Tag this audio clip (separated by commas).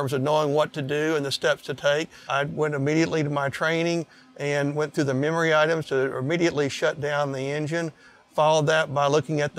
Speech